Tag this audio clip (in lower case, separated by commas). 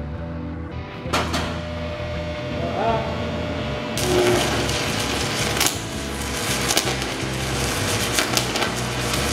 arc welding